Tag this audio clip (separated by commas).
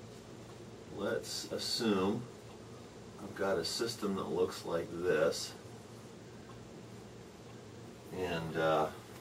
Speech